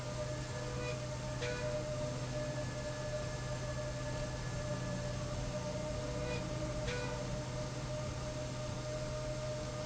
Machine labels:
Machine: slide rail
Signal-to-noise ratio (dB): -6 dB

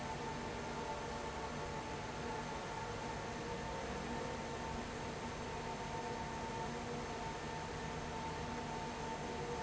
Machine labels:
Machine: fan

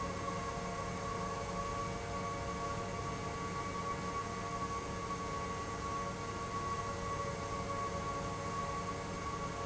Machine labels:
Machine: pump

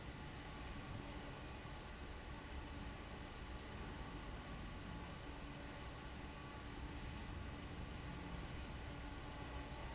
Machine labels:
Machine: fan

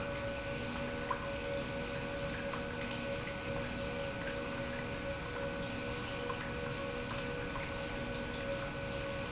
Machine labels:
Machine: pump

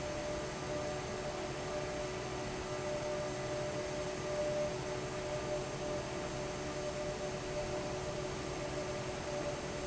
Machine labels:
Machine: fan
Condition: normal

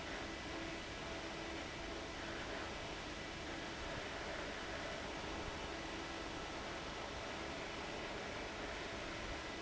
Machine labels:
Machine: fan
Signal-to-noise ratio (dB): 6 dB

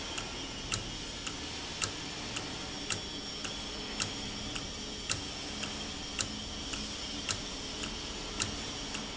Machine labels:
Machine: valve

